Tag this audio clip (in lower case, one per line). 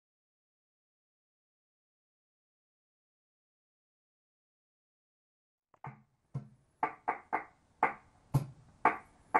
music